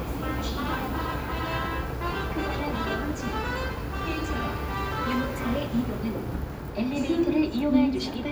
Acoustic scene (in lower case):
subway station